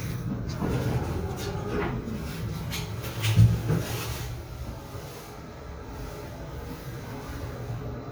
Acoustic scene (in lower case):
elevator